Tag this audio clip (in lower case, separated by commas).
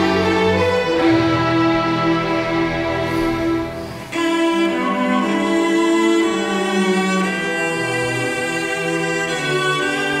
music, musical instrument, classical music, orchestra, bowed string instrument, cello, violin, string section